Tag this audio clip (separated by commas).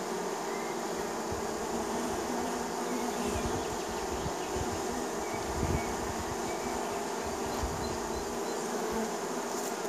bee